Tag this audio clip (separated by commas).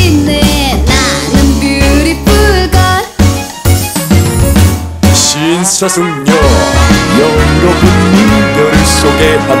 Music